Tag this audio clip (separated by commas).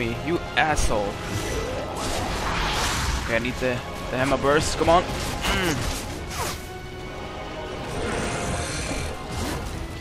Music, Speech